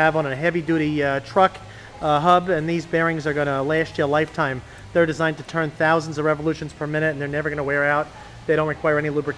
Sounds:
speech

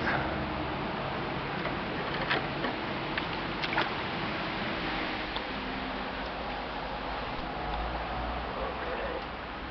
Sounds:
vehicle
boat

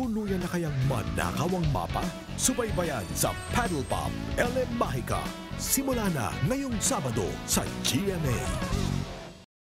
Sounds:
music
speech

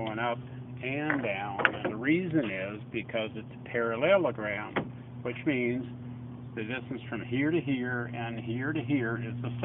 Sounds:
speech

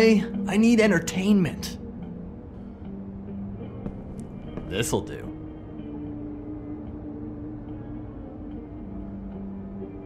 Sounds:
speech
music

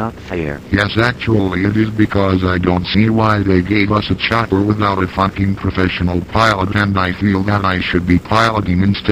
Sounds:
speech

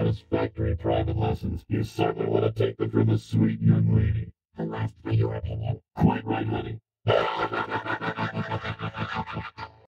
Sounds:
music
speech

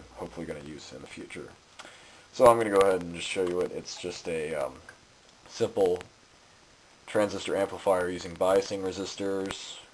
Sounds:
speech

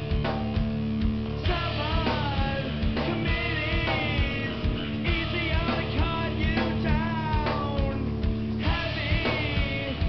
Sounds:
music

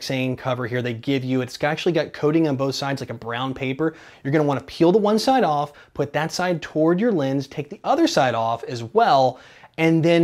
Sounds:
speech

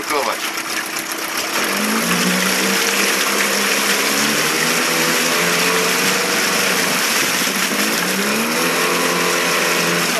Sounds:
speech

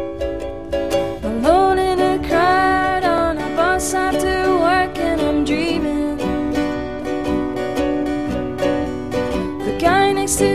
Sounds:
music

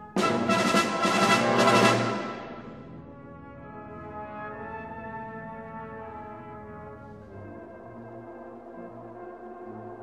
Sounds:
classical music
orchestra
music
brass instrument

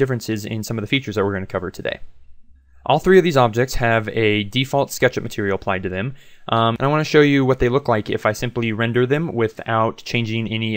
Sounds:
speech

